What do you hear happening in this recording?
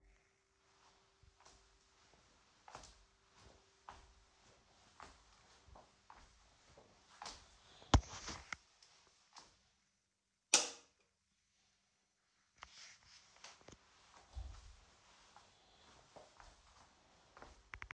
I walked to the wall in my room and turned on the light switch.